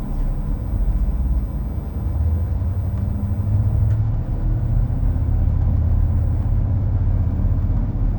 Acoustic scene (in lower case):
bus